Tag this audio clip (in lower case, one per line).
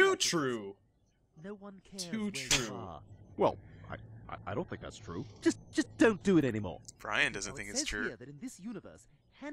speech